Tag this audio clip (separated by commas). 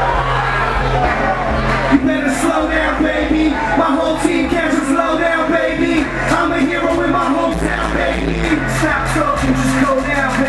Blues, Music, Pop music